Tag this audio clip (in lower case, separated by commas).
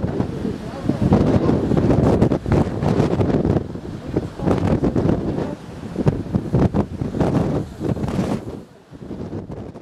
speech, outside, rural or natural